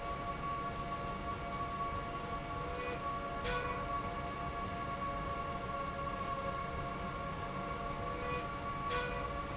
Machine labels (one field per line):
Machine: slide rail